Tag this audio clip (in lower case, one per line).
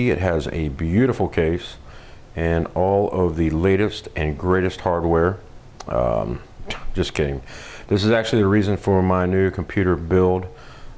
speech